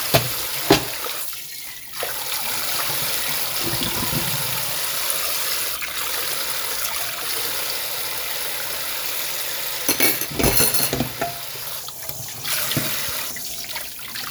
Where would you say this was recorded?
in a kitchen